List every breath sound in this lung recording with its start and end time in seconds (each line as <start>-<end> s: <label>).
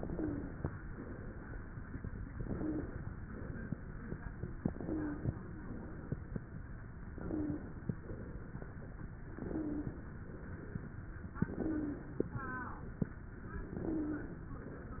0.00-0.69 s: inhalation
0.04-0.51 s: wheeze
0.78-2.26 s: exhalation
2.37-3.06 s: inhalation
3.24-4.63 s: exhalation
4.67-5.35 s: inhalation
4.82-5.20 s: wheeze
5.58-6.96 s: exhalation
7.09-7.63 s: wheeze
7.09-7.82 s: inhalation
7.95-9.26 s: exhalation
9.37-10.10 s: inhalation
9.49-9.94 s: wheeze
10.21-11.27 s: exhalation
11.38-12.18 s: inhalation
11.48-12.09 s: wheeze
12.35-13.49 s: exhalation
13.70-14.50 s: inhalation
13.85-14.36 s: wheeze